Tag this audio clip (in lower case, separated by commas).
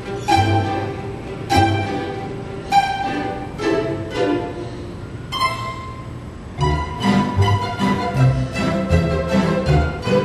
violin, music, musical instrument